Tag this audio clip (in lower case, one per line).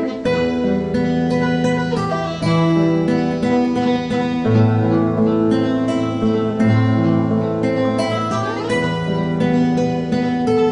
music
acoustic guitar
guitar
musical instrument
plucked string instrument